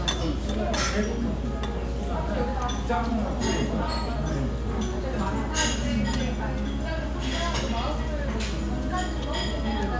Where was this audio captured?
in a restaurant